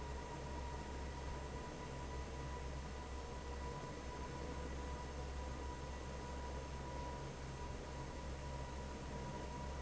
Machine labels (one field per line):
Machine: fan